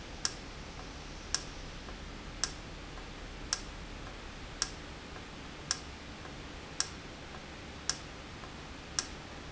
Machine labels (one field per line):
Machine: valve